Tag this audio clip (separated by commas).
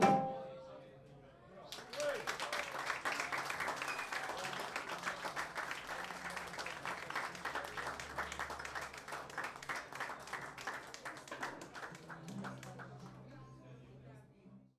Applause, Human group actions